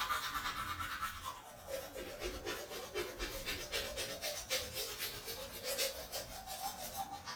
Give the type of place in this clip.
restroom